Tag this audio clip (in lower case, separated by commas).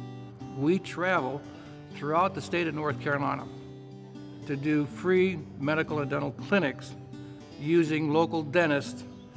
music, speech